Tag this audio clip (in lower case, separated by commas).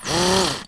tools